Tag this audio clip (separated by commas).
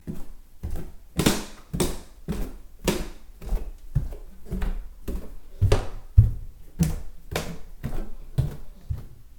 footsteps